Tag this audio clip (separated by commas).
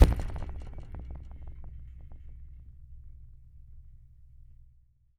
Musical instrument, Music, Percussion